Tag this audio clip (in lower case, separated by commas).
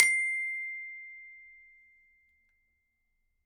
music, glockenspiel, musical instrument, mallet percussion, percussion